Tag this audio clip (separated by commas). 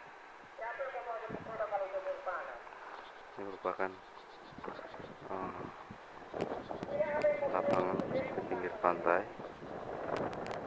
Speech